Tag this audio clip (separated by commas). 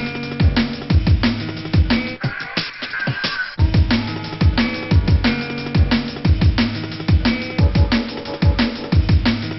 Music